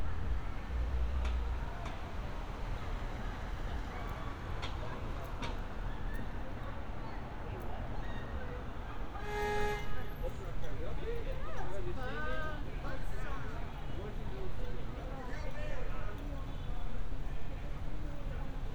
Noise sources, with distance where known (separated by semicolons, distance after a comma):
person or small group shouting